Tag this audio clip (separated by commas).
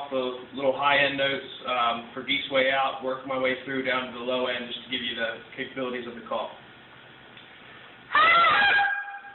Speech